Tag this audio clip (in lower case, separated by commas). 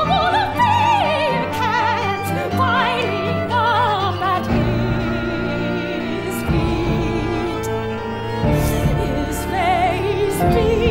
music, opera